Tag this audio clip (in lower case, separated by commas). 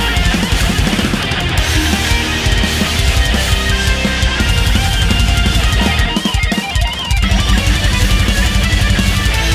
acoustic guitar, musical instrument, music, guitar, plucked string instrument